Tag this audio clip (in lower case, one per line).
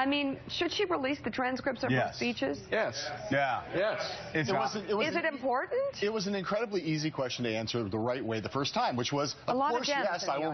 conversation
speech
male speech
woman speaking